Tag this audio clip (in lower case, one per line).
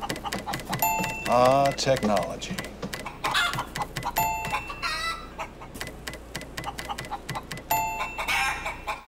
chicken
music
speech